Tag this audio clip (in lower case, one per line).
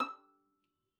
musical instrument
bowed string instrument
music